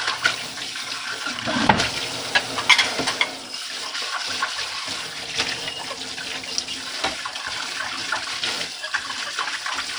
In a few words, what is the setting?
kitchen